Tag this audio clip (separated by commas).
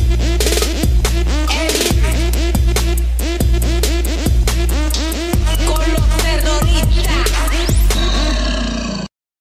Music